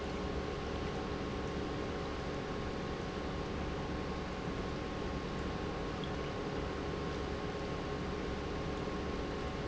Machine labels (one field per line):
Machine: pump